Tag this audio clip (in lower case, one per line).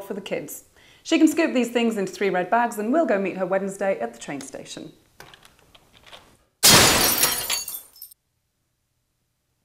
speech
breaking